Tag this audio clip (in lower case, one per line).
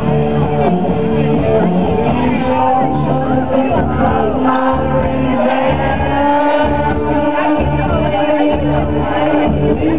music